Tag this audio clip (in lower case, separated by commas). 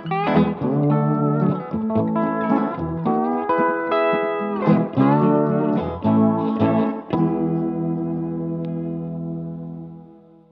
musical instrument, echo, distortion, music, guitar, bass guitar, steel guitar